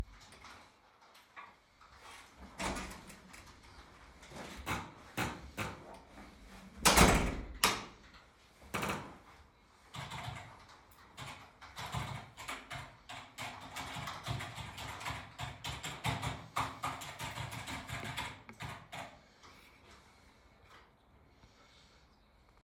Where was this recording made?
office